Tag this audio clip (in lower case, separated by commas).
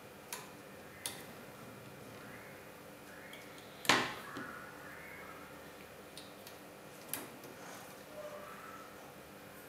inside a small room